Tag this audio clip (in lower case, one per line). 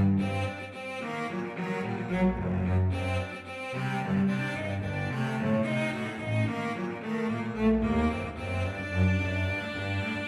musical instrument
music
cello